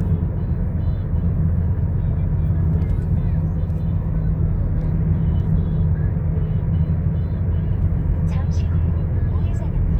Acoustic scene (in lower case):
car